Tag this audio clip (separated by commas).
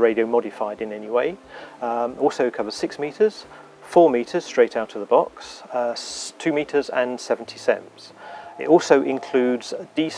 Speech